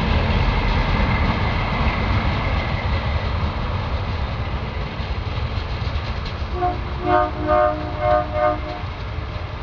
Running train followed by a train horn honking